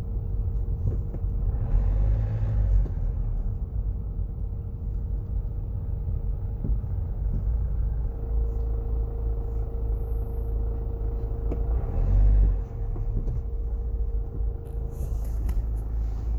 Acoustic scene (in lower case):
car